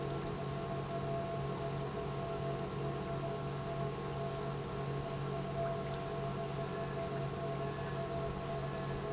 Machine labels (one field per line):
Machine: pump